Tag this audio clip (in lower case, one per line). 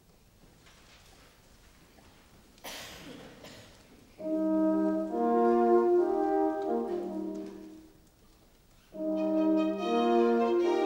orchestra
music